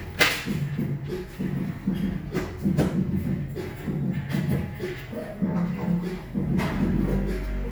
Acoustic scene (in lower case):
cafe